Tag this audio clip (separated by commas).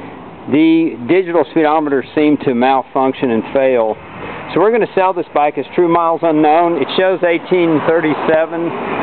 Speech